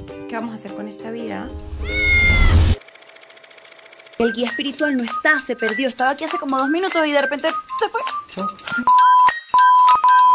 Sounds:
Speech, Music

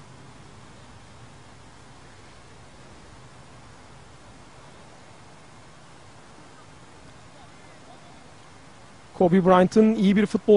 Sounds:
Speech

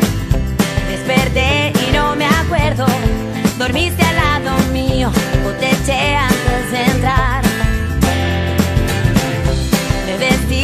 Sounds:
Music

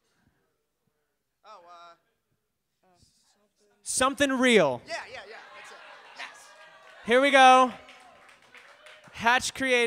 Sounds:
Speech

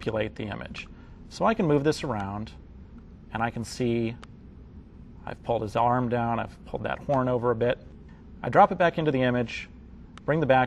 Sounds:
Speech

